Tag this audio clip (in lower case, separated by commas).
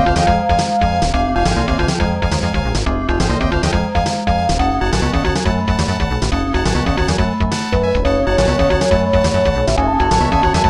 theme music, music